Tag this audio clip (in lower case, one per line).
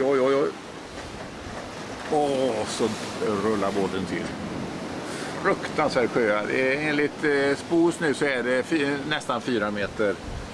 ocean
speech